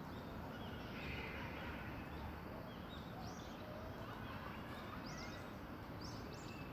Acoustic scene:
park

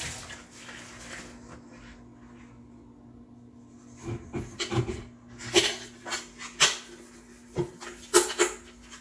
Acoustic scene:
kitchen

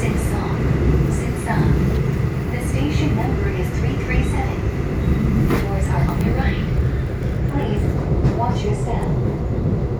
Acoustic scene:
subway train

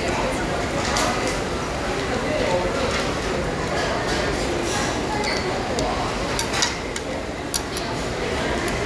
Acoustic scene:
restaurant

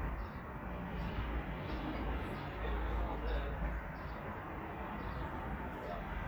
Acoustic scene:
residential area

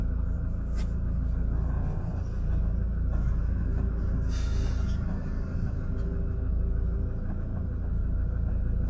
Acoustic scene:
car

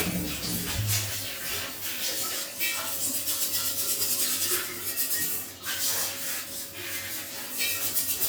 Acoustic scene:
restroom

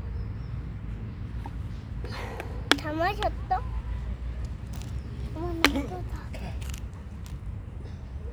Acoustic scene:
residential area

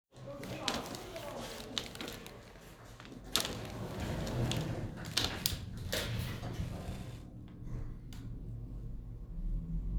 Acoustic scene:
elevator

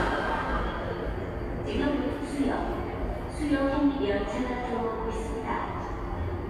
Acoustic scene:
subway station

